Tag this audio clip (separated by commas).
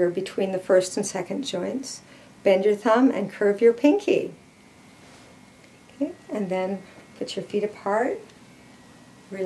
Speech